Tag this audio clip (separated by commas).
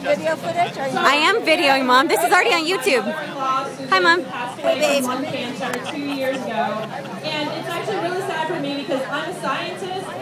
outside, rural or natural, Crowd, Speech